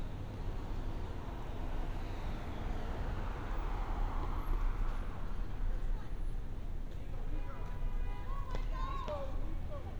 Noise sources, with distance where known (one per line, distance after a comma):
car horn
person or small group shouting, far